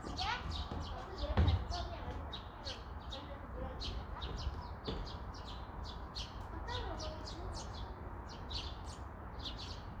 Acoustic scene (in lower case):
park